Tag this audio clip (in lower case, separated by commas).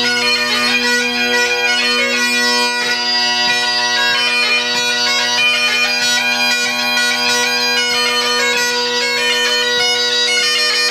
music, bagpipes